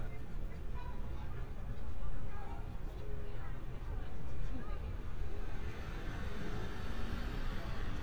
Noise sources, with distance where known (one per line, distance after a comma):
background noise